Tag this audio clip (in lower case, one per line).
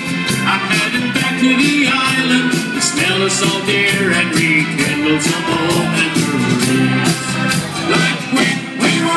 music